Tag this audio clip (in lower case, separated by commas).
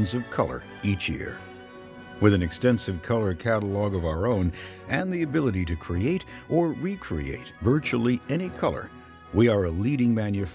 music, speech